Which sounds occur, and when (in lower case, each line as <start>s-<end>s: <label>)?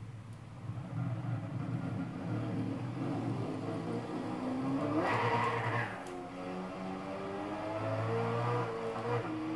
0.0s-9.5s: race car
0.0s-9.5s: video game sound
0.2s-0.4s: tick
3.0s-6.0s: vroom
5.0s-5.9s: tire squeal
5.4s-5.5s: tick
6.0s-6.1s: tick
7.3s-9.5s: vroom